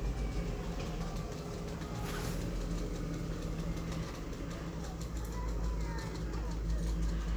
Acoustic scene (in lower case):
residential area